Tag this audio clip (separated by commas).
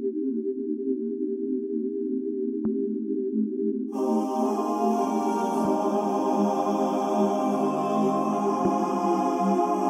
Music